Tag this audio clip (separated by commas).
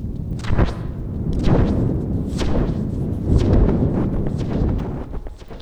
Wind